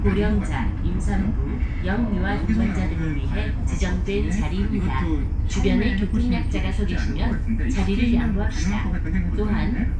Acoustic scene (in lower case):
bus